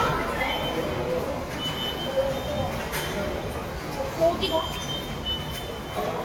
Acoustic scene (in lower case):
subway station